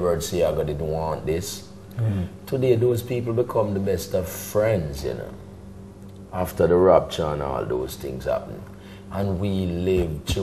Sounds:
Speech

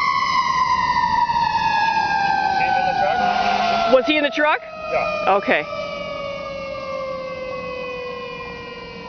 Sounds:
Truck, Speech

